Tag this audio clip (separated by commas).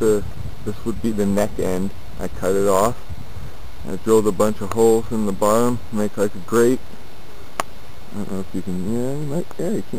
Speech